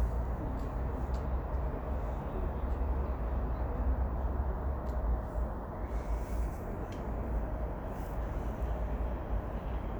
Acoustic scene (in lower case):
residential area